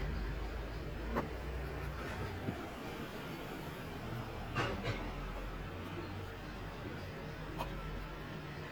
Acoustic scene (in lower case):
residential area